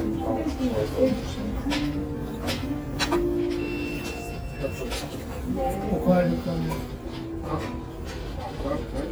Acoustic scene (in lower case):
restaurant